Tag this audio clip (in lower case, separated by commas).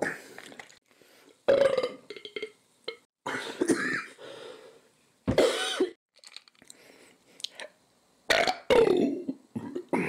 people burping